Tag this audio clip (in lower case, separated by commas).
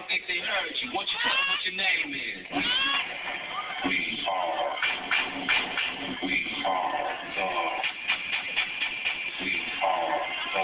speech, outside, urban or man-made